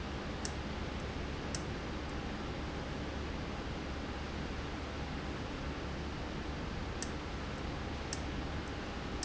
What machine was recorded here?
valve